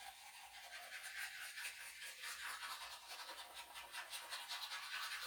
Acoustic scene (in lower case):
restroom